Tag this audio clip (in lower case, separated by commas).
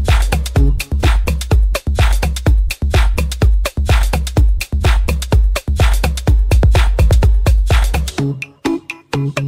pop music, music